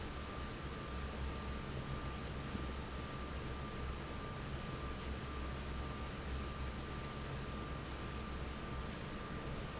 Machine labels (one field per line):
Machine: fan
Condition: normal